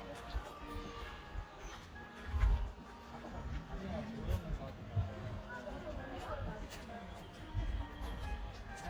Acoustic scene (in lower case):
park